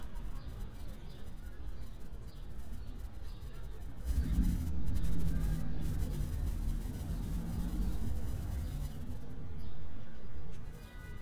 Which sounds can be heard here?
car horn